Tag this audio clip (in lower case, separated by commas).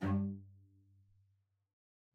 musical instrument, bowed string instrument, music